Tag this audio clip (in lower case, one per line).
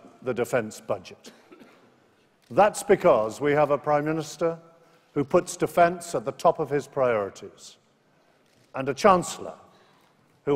speech
male speech